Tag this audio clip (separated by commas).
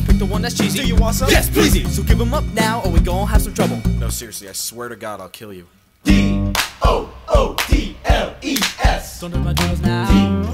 Speech, Music